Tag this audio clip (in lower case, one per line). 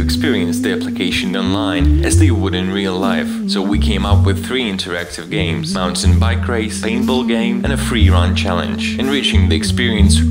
music
speech